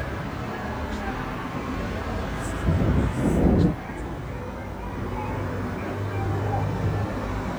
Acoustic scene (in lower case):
street